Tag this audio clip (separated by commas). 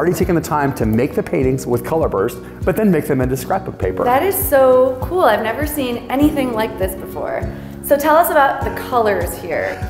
Speech, Music